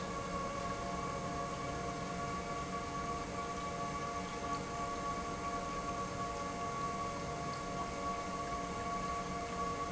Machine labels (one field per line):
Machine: pump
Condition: normal